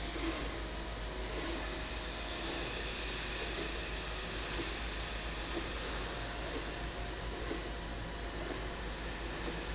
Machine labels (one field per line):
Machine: slide rail